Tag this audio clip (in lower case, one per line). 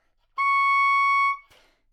music
musical instrument
wind instrument